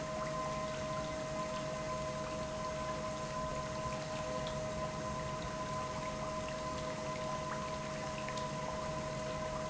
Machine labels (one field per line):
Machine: pump